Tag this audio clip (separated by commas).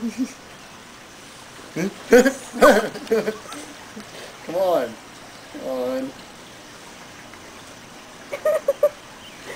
Speech, Animal